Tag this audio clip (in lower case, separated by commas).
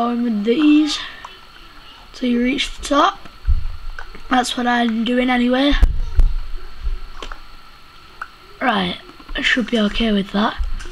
speech